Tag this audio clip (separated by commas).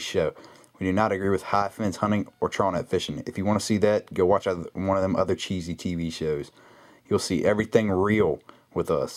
Speech